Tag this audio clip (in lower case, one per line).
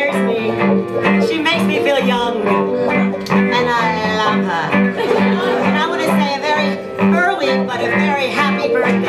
music
speech